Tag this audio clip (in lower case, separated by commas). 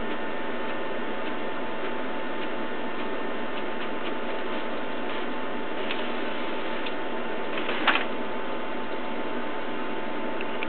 printer